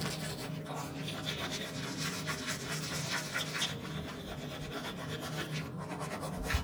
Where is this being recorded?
in a restroom